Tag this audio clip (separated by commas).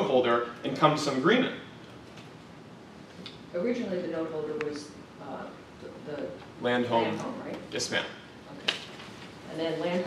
Speech